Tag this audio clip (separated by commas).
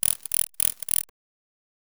Animal, Wild animals, Insect